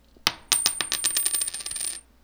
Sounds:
coin (dropping), domestic sounds

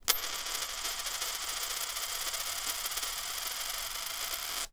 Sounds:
domestic sounds, coin (dropping)

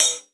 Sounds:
musical instrument, percussion, music, cymbal, hi-hat

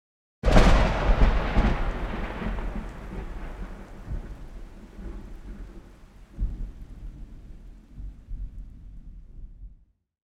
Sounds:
thunderstorm, thunder

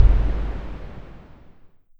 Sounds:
boom, explosion

